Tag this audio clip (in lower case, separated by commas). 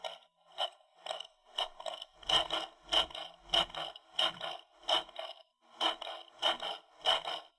tools